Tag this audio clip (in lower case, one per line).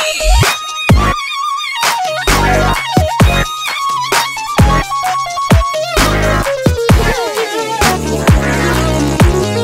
playing synthesizer